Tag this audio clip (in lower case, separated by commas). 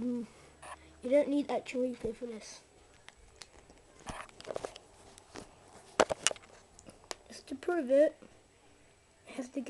inside a small room, speech